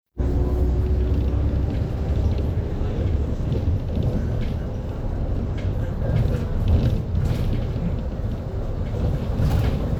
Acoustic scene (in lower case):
bus